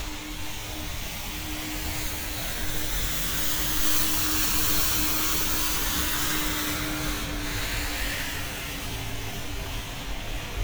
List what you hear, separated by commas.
engine of unclear size